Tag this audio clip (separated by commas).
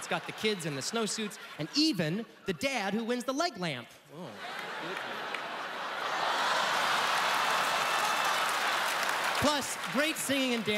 Speech